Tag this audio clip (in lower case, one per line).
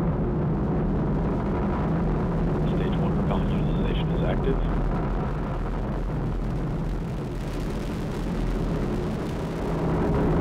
speech